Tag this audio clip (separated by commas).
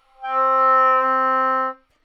Music, Musical instrument, Wind instrument